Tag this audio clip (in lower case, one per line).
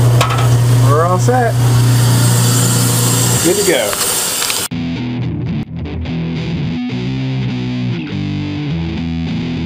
speech
sink (filling or washing)
music
inside a small room